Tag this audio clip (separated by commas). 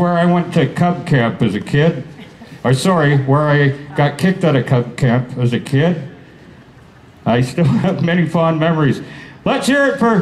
Speech